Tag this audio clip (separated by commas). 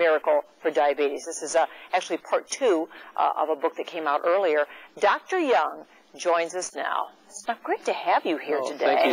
Speech